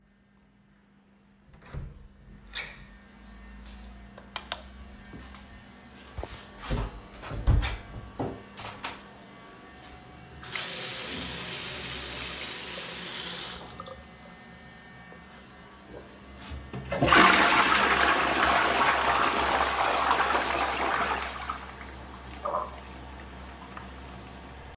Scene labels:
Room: lavatory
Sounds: door (more than once), footsteps, light switch, running water, toilet flushing

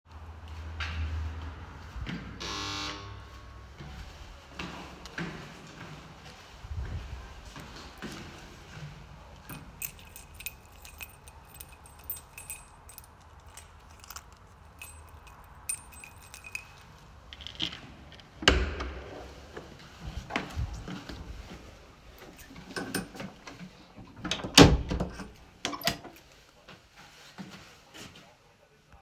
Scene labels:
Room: hallway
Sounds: footsteps, bell ringing, keys, door

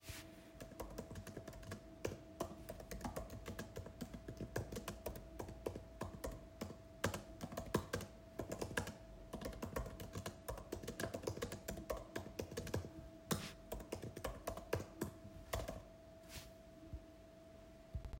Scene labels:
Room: office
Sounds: keyboard typing

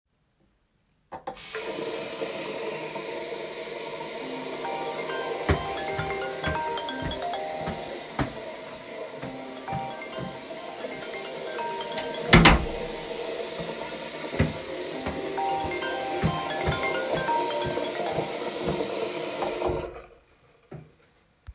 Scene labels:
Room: bathroom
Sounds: running water, phone ringing, footsteps, door

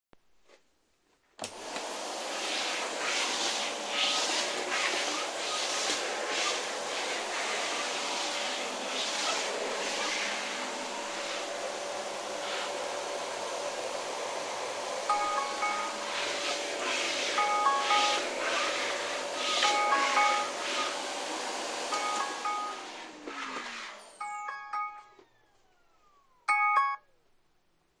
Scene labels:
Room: bedroom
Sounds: vacuum cleaner, phone ringing

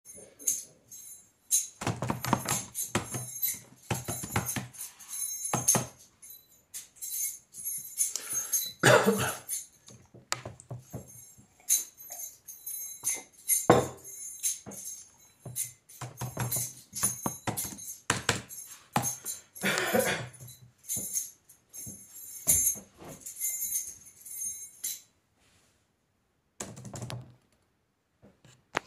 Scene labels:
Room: living room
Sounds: keys, keyboard typing

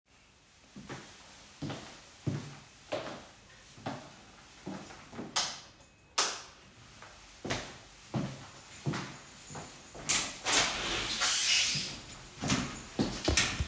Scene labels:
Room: bedroom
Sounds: footsteps, light switch, window

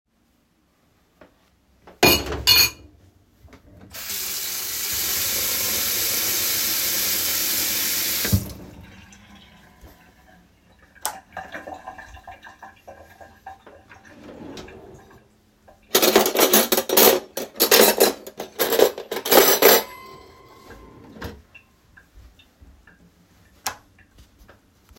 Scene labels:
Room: living room, kitchen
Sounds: cutlery and dishes, running water, light switch

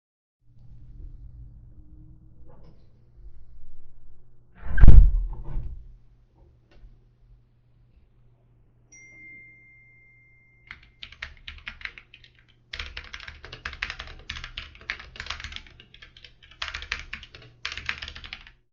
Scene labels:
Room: office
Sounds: window, phone ringing, keyboard typing

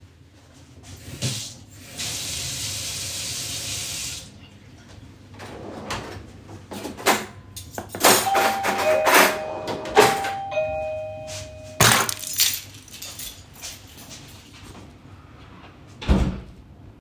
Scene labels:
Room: kitchen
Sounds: running water, wardrobe or drawer, cutlery and dishes, bell ringing, keys, footsteps, door

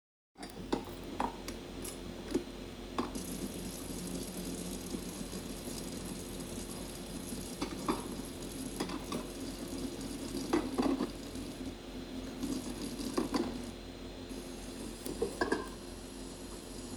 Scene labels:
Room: kitchen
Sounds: cutlery and dishes, running water

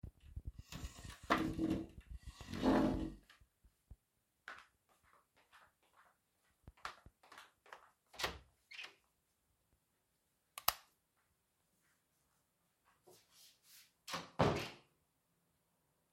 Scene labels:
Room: bedroom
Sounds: footsteps, door (more than once), light switch

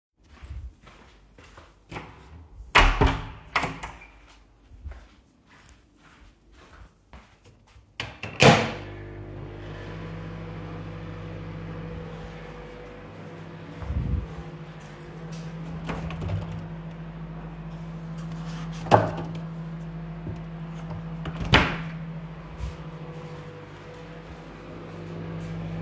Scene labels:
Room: kitchen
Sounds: footsteps, door, microwave

